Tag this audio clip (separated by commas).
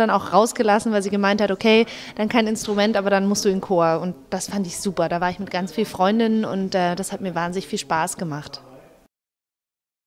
Speech